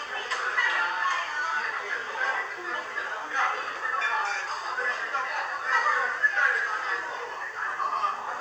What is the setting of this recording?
crowded indoor space